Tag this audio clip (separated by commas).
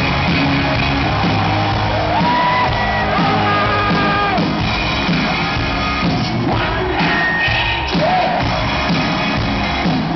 Music